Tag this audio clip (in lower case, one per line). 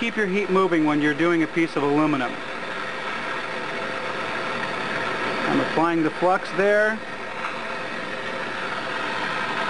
speech